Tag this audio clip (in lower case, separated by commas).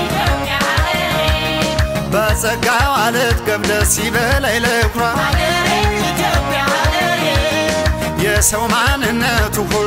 music